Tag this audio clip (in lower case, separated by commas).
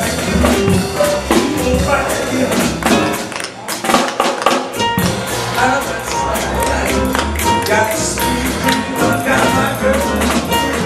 music